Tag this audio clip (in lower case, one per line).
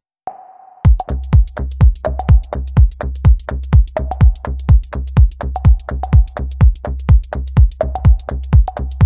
electronic music
techno
music